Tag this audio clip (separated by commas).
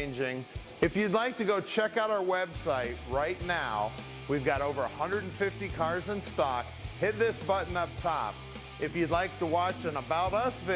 Music, Speech